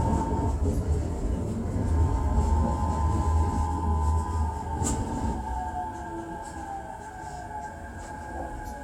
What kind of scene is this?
subway train